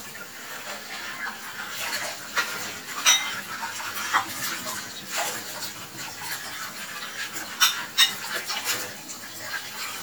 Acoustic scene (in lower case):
kitchen